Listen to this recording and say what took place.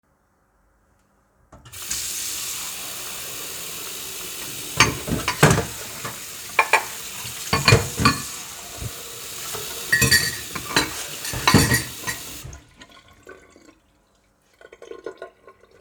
I started running water in the sink and moved plates and cutlery while the water continued flowing.